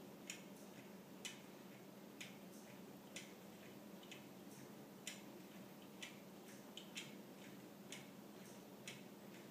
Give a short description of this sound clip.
Rhythmic ticking is occurring in a quiet environment